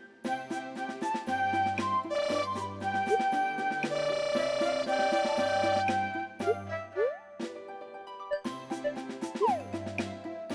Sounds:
Music

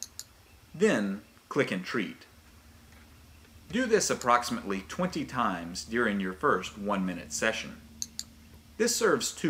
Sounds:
Speech

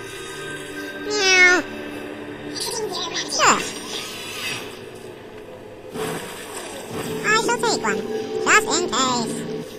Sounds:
Speech

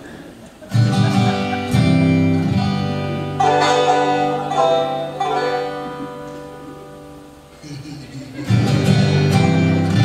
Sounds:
Plucked string instrument, Music, Banjo, Musical instrument

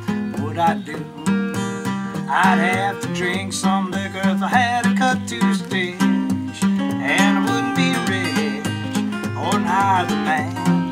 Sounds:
Music

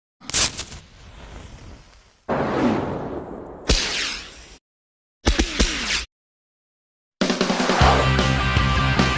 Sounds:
Music

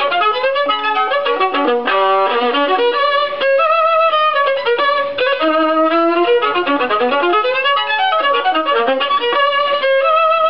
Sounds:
Violin, Music, Musical instrument

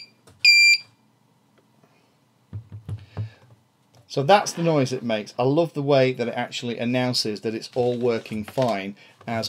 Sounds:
Speech

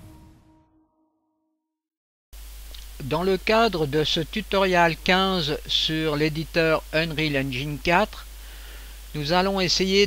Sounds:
Speech

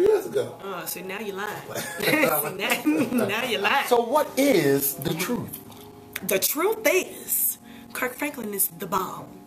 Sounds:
Speech

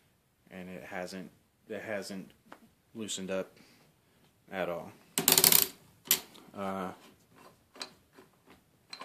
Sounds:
inside a small room, Speech

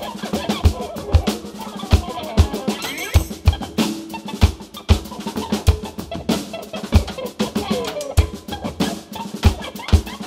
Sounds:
Music, Sound effect

